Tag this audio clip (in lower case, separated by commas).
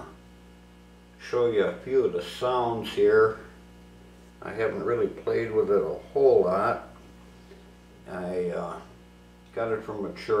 speech